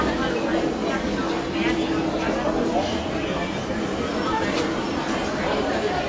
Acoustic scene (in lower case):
crowded indoor space